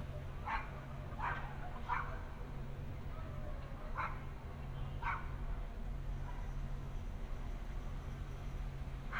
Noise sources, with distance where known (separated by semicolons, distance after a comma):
dog barking or whining, near